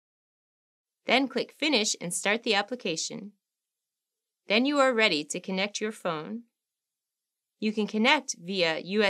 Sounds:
Speech

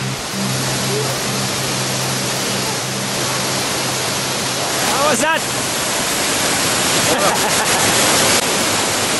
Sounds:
outside, rural or natural, Speech

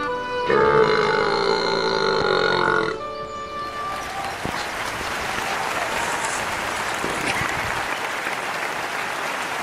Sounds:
people burping

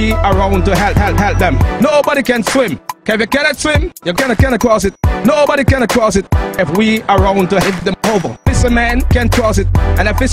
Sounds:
Music

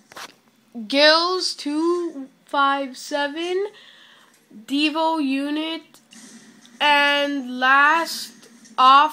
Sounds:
Speech

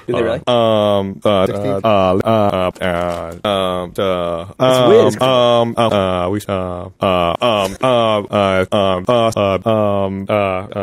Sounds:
Speech

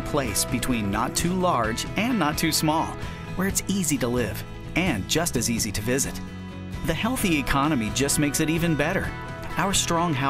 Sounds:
Music, Speech

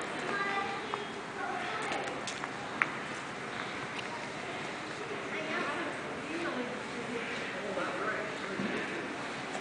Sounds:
Speech

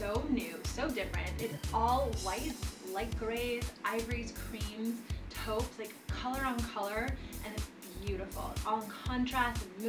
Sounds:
Music, Speech

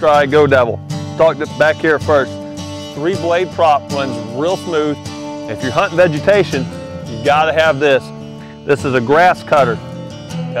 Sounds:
Speech, Music

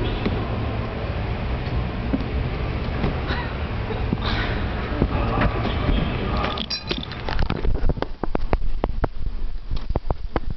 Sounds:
Speech

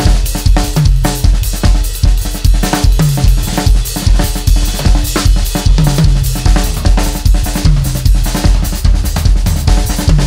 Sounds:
playing bass drum

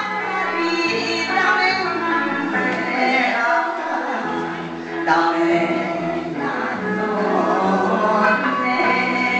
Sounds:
Music, Female singing

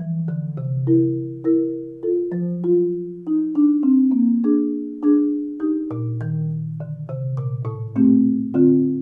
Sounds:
playing marimba

